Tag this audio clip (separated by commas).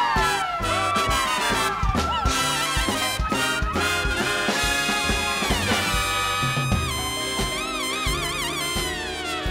Music